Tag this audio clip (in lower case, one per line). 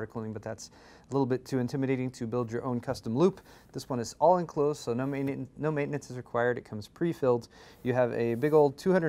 speech